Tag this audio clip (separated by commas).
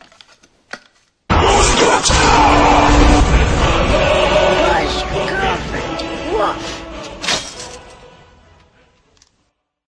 Speech, Music